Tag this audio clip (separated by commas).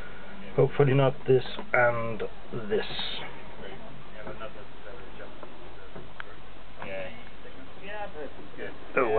Speech